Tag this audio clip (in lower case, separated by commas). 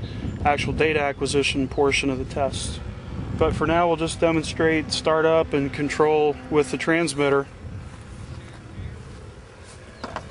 speech